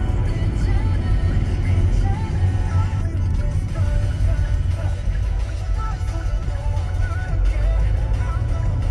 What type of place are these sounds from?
car